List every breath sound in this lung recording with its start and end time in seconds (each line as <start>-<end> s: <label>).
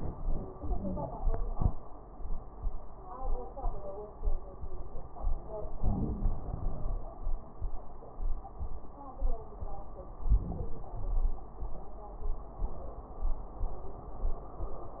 0.59-1.36 s: exhalation
0.59-1.36 s: wheeze
5.84-7.06 s: inhalation
10.21-10.93 s: inhalation
10.94-11.56 s: exhalation